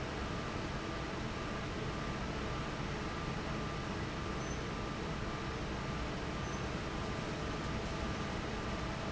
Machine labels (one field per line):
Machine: fan